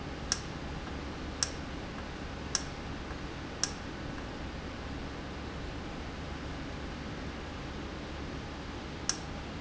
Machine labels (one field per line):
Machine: valve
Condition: normal